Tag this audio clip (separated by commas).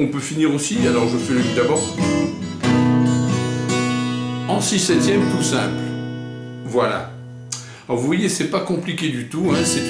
Guitar, Blues, Musical instrument, Music, Speech, Acoustic guitar, Plucked string instrument